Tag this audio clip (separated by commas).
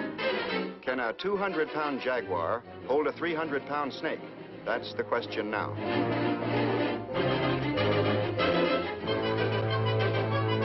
Music, Speech